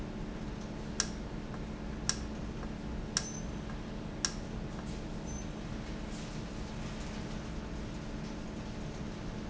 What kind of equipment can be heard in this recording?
valve